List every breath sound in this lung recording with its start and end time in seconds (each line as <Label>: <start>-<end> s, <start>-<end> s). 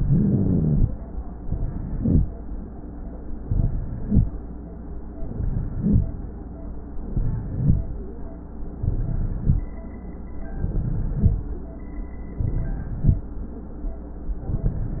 Inhalation: 0.00-0.84 s, 1.42-2.26 s, 3.45-4.29 s, 5.20-6.04 s, 7.11-7.82 s, 8.82-9.68 s, 10.57-11.42 s, 12.41-13.26 s
Rhonchi: 0.00-0.84 s, 3.43-4.05 s, 5.24-5.84 s, 7.11-7.45 s, 8.82-9.44 s, 10.61-11.22 s, 12.41-13.03 s